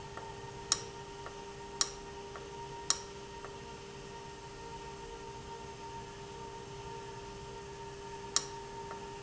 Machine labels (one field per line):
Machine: valve